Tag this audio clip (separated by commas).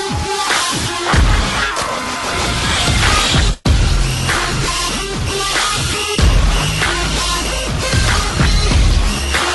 Music